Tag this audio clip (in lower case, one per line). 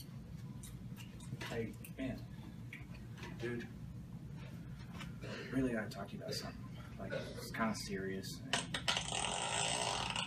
speech